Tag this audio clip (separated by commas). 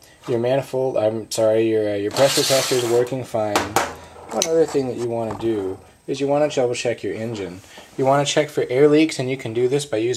Speech